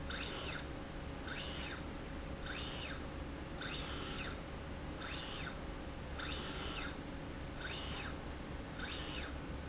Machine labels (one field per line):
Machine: slide rail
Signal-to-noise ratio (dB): 0 dB